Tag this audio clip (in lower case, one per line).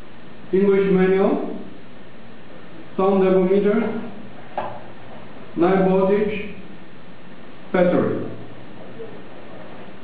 speech